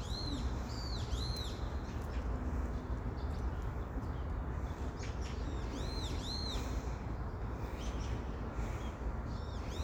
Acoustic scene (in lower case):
park